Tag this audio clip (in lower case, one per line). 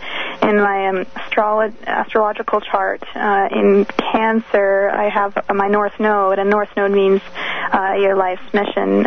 radio
speech